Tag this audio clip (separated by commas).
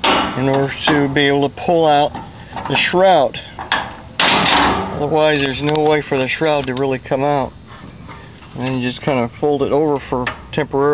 outside, rural or natural, Speech